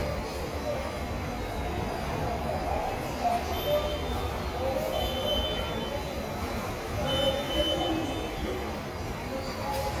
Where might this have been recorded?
in a subway station